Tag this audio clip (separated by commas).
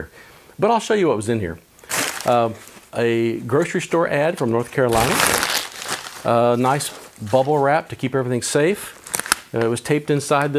Speech